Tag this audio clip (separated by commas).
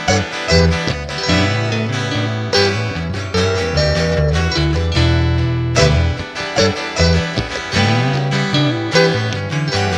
Musical instrument, Plucked string instrument, Music, Guitar